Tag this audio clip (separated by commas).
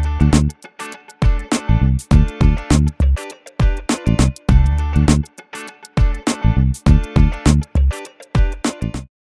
Music